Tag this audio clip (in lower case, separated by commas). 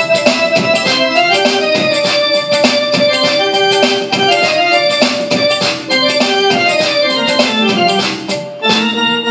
piano, electric piano, keyboard (musical)